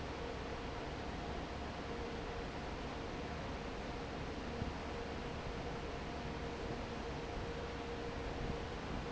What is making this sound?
fan